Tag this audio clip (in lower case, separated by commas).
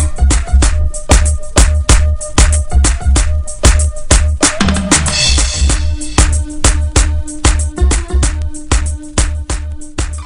music